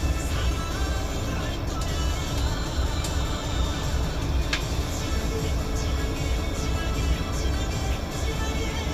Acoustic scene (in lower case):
bus